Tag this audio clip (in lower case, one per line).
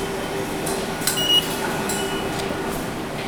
vehicle
rail transport
underground